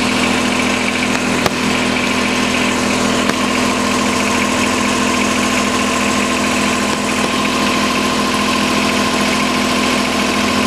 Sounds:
lawn mowing, Vehicle, Lawn mower

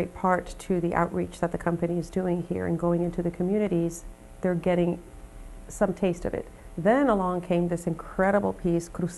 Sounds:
Music, Speech

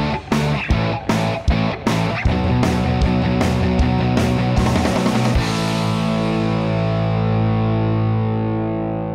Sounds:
Music

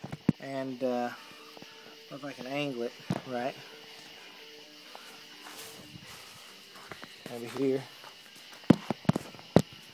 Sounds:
Speech

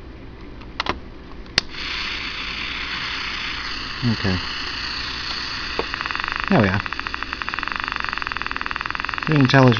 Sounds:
Speech

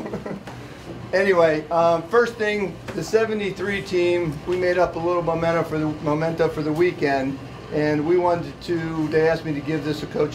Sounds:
Speech

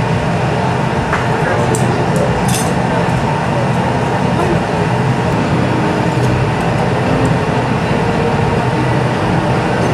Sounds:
Speech

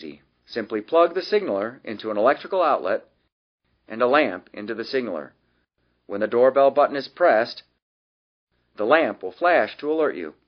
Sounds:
Speech

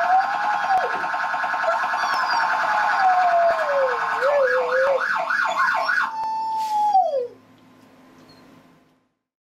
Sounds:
Emergency vehicle, Police car (siren)

